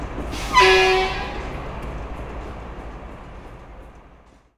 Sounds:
motor vehicle (road), vehicle, truck

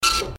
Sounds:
printer, mechanisms

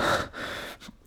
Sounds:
respiratory sounds, breathing

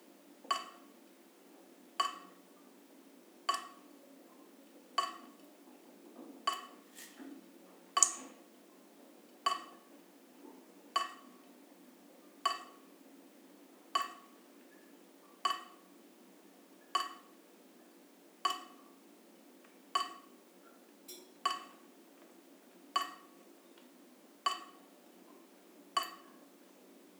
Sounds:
drip, water tap, liquid, domestic sounds

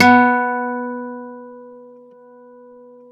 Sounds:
acoustic guitar, music, guitar, plucked string instrument, musical instrument

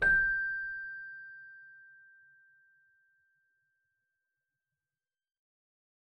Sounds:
music, musical instrument, keyboard (musical)

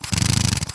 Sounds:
power tool, drill, tools

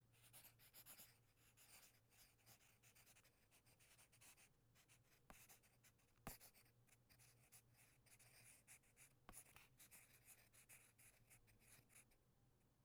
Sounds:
domestic sounds, writing

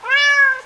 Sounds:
pets, animal, cat

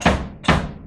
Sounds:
drum, percussion, music, musical instrument, bass drum

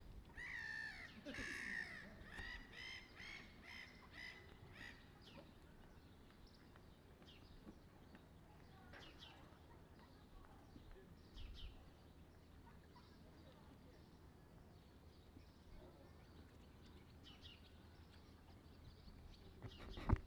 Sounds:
wild animals, bird song, animal, bird

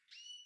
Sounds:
bird, animal, wild animals, bird song, tweet

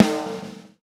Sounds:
snare drum, drum, musical instrument, music, percussion

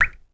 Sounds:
drip, liquid

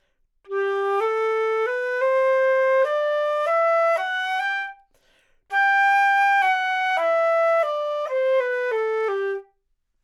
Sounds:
music, woodwind instrument, musical instrument

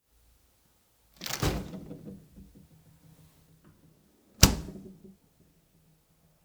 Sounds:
door, domestic sounds, slam

